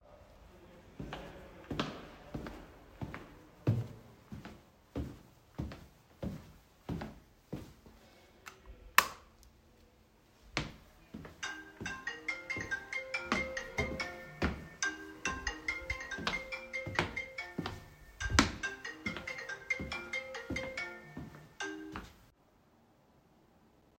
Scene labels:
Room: hallway, bedroom; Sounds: footsteps, light switch, phone ringing

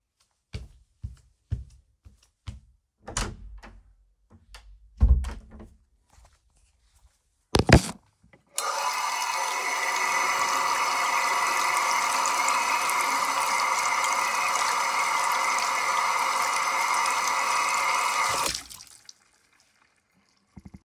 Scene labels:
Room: bathroom; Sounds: footsteps, door (more than once), running water

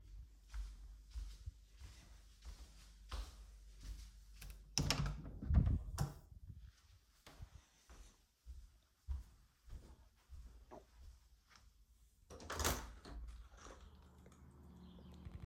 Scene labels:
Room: bedroom; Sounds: footsteps, door, window

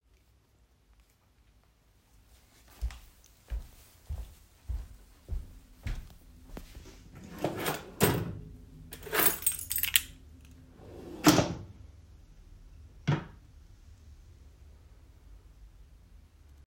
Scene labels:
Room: hallway; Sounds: footsteps, wardrobe or drawer (more than once), keys

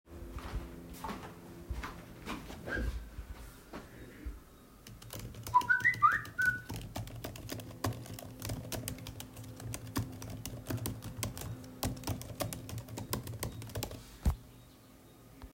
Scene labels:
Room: office; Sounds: footsteps, keyboard typing, phone ringing

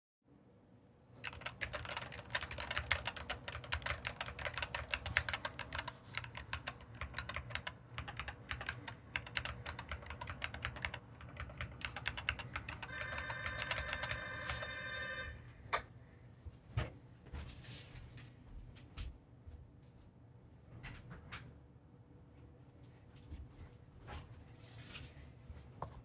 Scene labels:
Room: office; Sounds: keyboard typing, bell ringing, footsteps, door (more than once)

